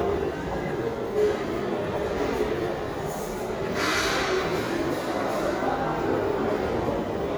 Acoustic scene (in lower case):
restaurant